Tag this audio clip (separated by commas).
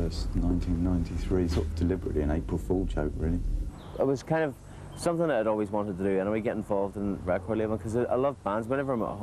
Speech